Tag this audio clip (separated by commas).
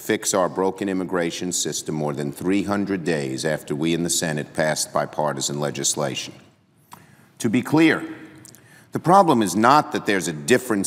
Speech, monologue, Male speech